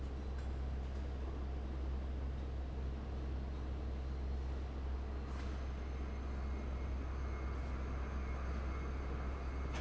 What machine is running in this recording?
fan